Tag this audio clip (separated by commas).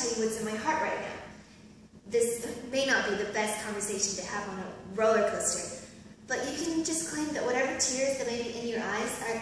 Speech